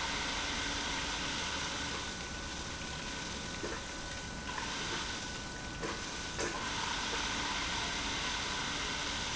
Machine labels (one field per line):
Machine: pump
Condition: abnormal